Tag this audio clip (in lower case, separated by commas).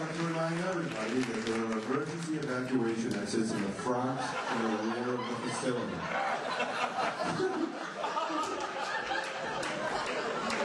speech, narration, male speech